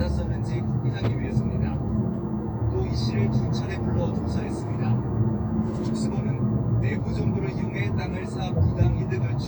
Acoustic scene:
car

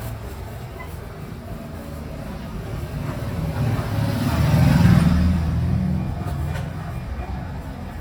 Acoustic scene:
residential area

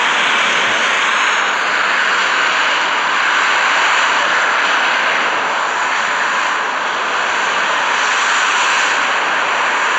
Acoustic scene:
street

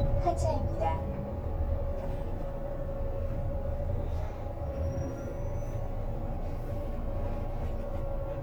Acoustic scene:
bus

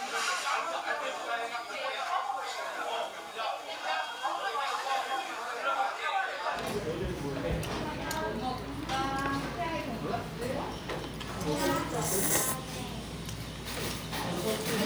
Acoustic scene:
restaurant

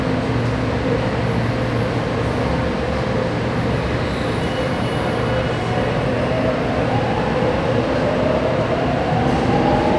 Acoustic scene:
subway station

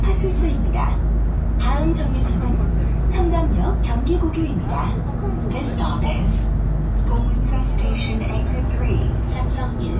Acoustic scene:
bus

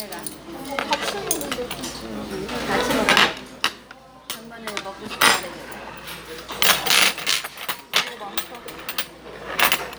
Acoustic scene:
restaurant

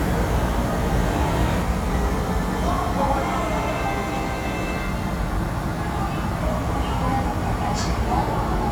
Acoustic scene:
subway station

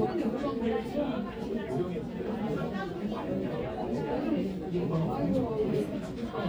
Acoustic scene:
crowded indoor space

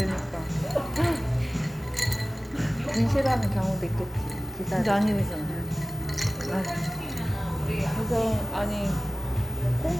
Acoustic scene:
cafe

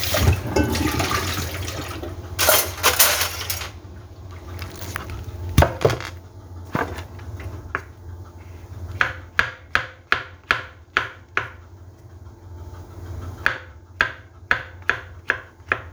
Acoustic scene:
kitchen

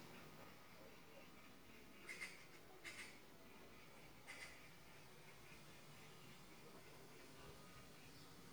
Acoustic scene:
park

